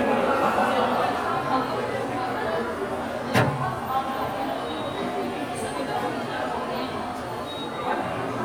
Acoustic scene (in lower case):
subway station